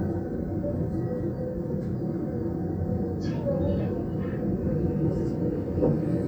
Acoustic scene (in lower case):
subway train